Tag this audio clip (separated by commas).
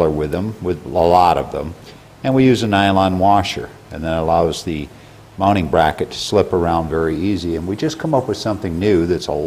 Speech